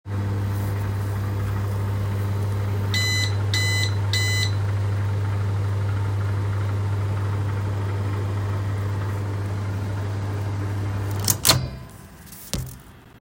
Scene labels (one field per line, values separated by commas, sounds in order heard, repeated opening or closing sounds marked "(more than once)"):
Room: kitchen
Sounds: microwave